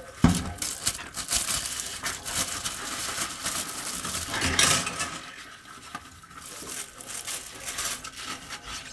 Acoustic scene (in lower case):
kitchen